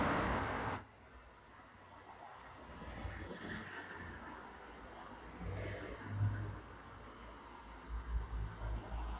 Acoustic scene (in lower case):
street